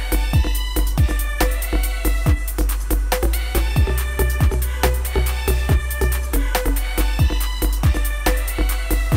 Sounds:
drum kit, percussion, rimshot, drum

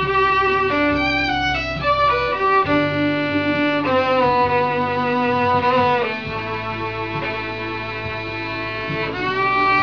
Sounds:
music, fiddle, musical instrument

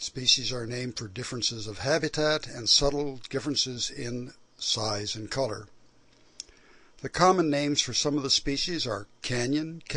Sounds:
speech

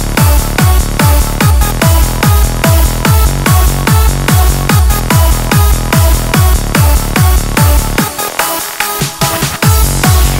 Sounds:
techno, electronic music, music

